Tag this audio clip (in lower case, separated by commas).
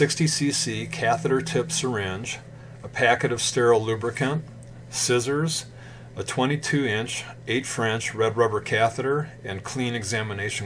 speech